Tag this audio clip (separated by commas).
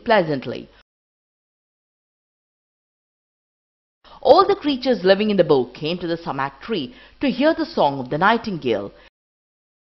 Speech